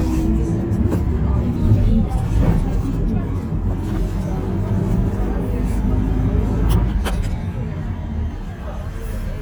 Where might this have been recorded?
on a bus